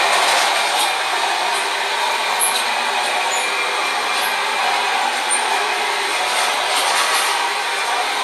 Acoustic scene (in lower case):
subway train